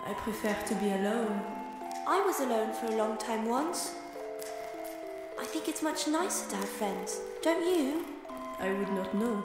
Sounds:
speech, music

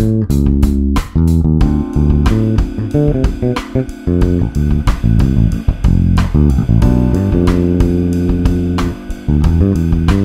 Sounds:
musical instrument, music, plucked string instrument, strum, bass guitar, playing bass guitar, guitar

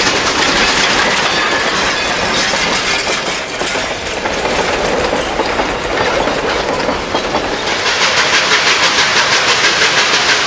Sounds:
train whistling

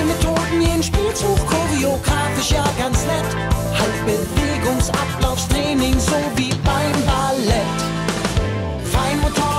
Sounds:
music

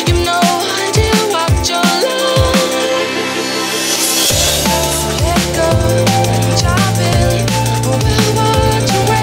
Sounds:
music, dance music

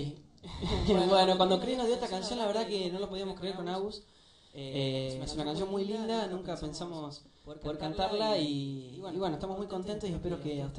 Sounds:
speech

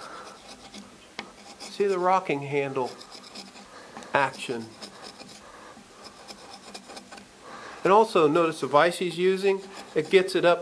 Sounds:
tools

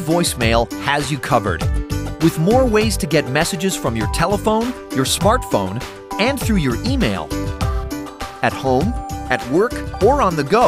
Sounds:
speech, music

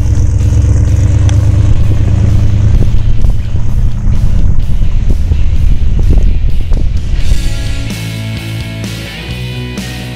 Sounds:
vehicle, outside, urban or man-made, music, car

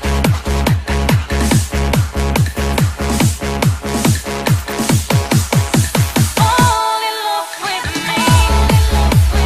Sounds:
music, trance music

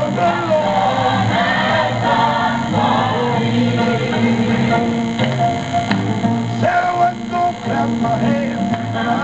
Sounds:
male singing, choir, music

